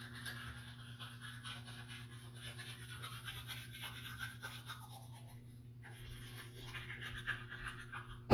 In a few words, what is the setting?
restroom